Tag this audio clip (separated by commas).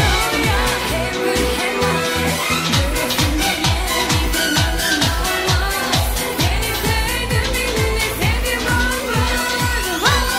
Music of Asia, Music, Singing